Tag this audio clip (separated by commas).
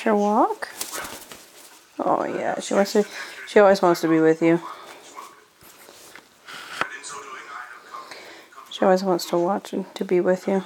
Bird, Speech, Animal